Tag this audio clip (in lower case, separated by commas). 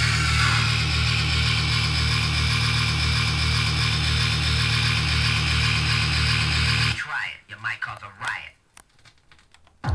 music, inside a small room, speech